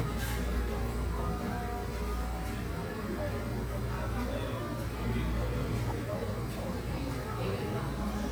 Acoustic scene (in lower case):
cafe